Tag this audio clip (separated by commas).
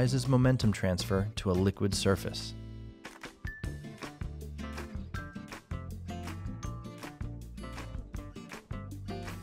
Speech, Music